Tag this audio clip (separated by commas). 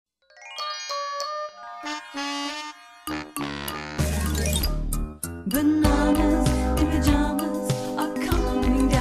Music